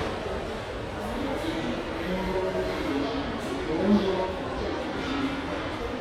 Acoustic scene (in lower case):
subway station